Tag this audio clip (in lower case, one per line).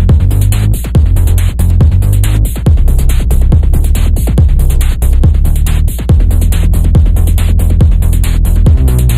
music